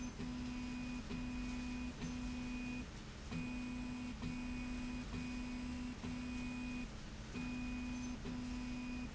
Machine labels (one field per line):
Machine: slide rail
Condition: normal